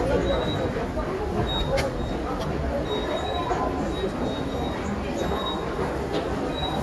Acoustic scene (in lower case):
subway station